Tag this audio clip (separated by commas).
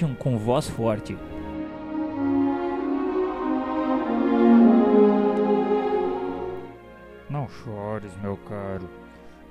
Music, Speech